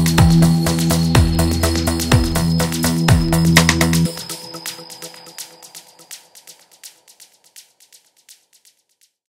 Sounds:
Music

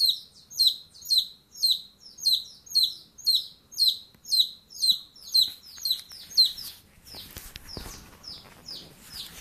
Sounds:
pets, Bird, Chirp, bird chirping

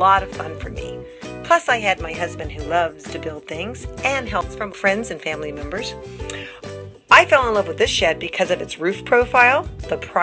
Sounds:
Music, Speech

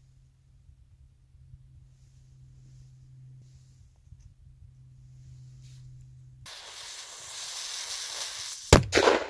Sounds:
lighting firecrackers

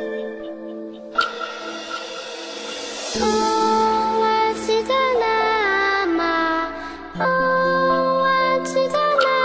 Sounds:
Music, Mantra

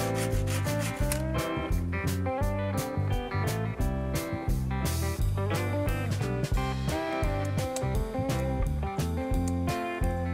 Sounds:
Music

